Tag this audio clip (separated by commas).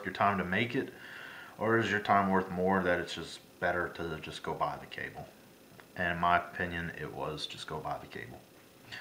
Speech, inside a small room